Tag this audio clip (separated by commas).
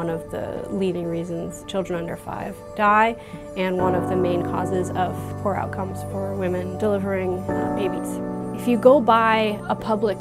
Music, Speech